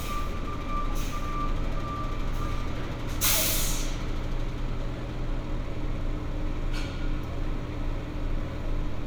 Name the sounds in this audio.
large-sounding engine